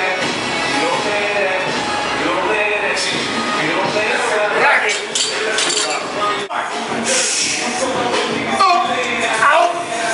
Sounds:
Music, Speech

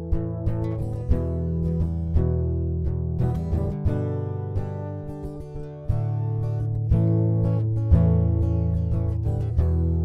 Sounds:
Music

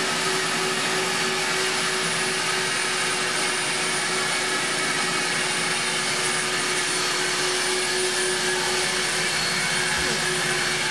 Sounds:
Vacuum cleaner

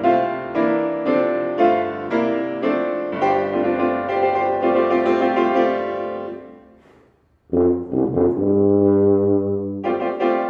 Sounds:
Trombone, Music, Musical instrument

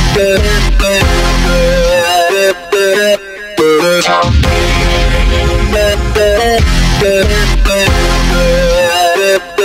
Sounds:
Dubstep, Music, Electronic music

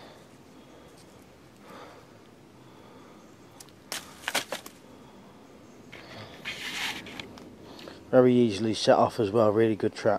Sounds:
Silence, outside, rural or natural, Speech

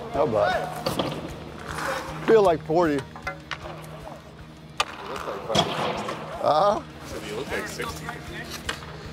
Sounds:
Music, Speech

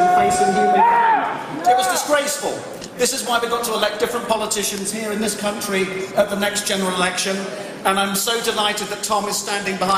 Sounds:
Speech

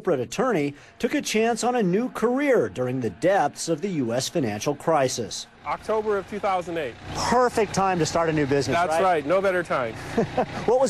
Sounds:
Speech

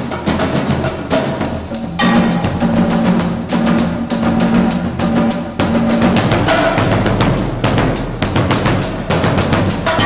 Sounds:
xylophone, Mallet percussion, Glockenspiel

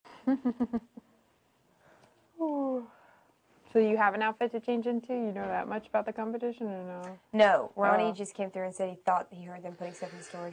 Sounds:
Speech

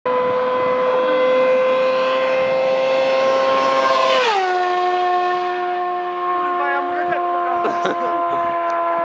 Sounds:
Speech

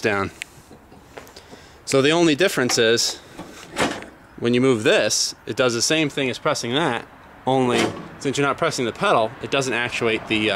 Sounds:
Speech

